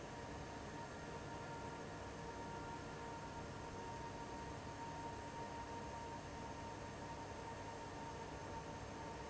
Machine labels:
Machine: fan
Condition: abnormal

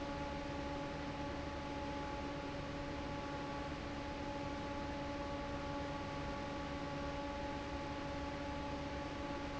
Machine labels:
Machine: fan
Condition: normal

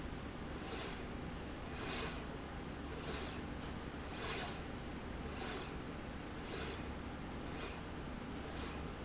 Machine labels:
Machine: slide rail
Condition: normal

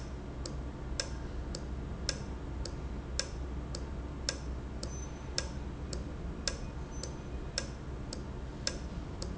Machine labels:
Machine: valve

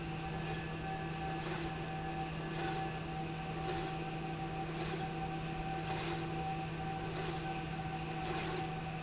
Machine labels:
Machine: slide rail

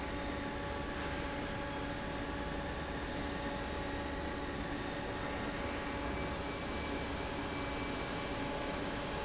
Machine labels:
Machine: fan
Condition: normal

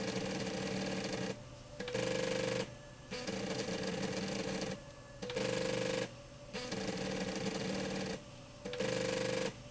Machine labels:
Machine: slide rail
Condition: abnormal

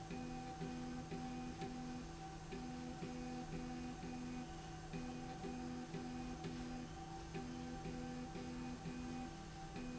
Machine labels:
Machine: slide rail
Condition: normal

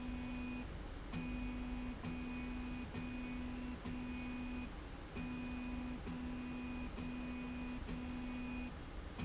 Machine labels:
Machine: slide rail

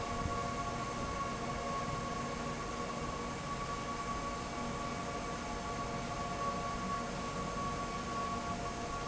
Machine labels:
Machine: fan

